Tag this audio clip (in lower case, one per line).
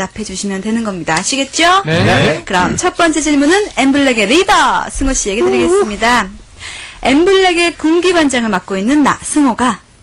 speech